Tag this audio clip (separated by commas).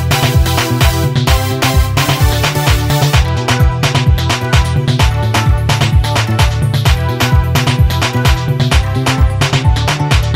Music of Africa, Afrobeat, Music